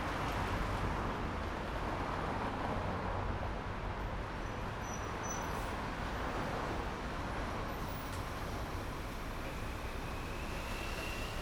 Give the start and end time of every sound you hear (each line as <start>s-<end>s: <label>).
0.0s-8.2s: car
0.0s-8.2s: car wheels rolling
4.1s-5.6s: bus brakes
4.1s-11.4s: bus
5.4s-5.8s: bus compressor
7.7s-8.6s: bus compressor
8.6s-11.4s: bus engine idling
10.0s-11.4s: motorcycle
10.0s-11.4s: motorcycle engine accelerating